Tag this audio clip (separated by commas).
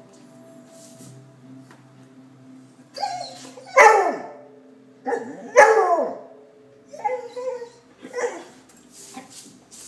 Animal, Dog, Music, Domestic animals